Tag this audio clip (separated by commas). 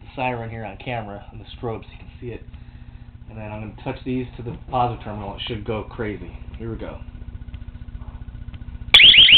Alarm, Speech